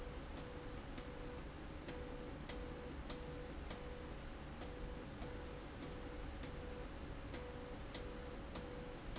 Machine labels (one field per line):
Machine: slide rail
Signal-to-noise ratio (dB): 6 dB